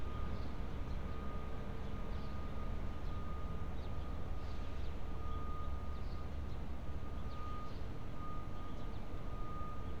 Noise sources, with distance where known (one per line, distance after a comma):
engine of unclear size, near
reverse beeper